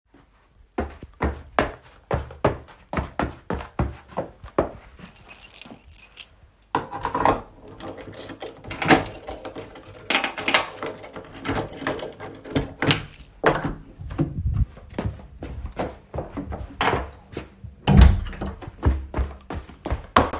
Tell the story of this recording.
Person walks with keys, opens and closes a door, then continues walking.